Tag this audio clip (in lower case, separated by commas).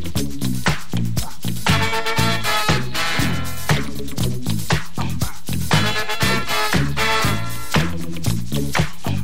disco, music